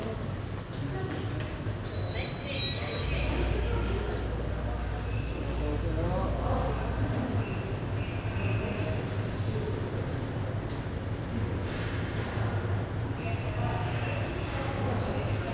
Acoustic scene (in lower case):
subway station